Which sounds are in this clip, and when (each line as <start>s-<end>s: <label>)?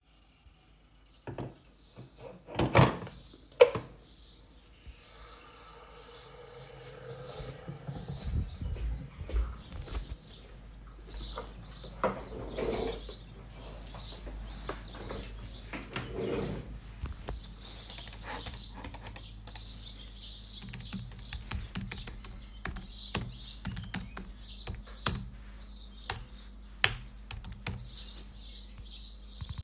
7.6s-12.0s: footsteps
20.6s-28.6s: keyboard typing